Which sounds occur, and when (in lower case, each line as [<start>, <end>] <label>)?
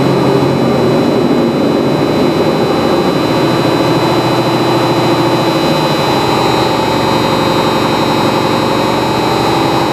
[0.00, 9.92] mechanisms
[0.00, 9.92] truck